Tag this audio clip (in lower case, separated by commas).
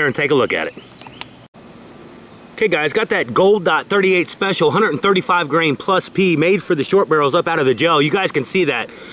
outside, rural or natural, speech